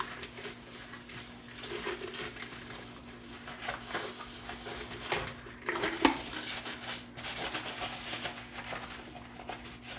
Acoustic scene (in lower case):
kitchen